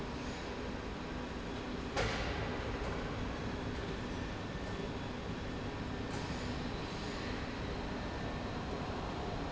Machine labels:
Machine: slide rail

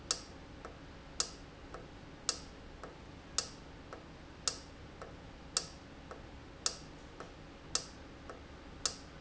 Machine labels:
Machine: valve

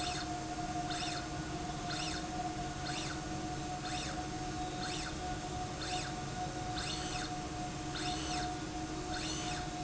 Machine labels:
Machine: slide rail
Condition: normal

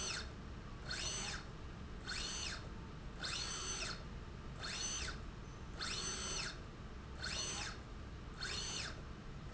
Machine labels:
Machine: slide rail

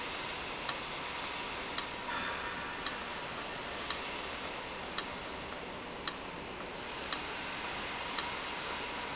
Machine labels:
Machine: valve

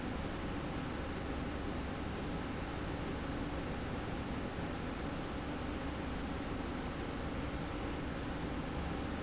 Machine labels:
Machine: slide rail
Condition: normal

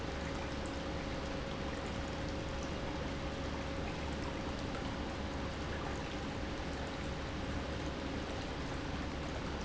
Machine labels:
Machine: pump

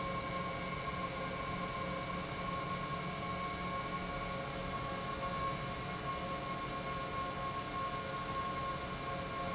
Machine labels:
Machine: pump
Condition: normal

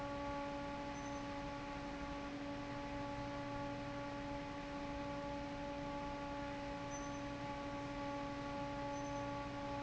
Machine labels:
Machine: fan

